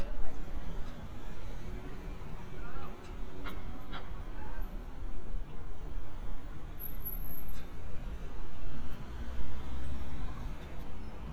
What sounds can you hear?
person or small group talking